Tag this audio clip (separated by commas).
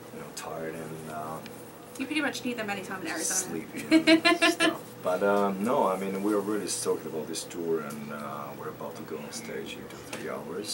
Speech